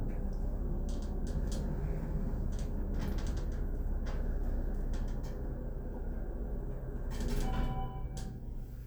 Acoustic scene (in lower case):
elevator